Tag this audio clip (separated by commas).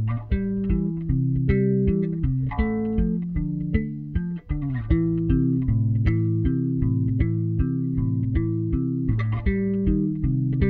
Musical instrument, Music, Guitar, Plucked string instrument, Strum, Electric guitar